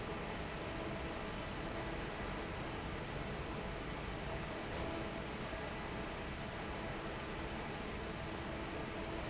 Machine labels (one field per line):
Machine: fan